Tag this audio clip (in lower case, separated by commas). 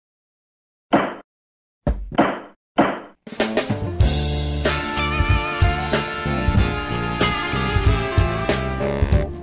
music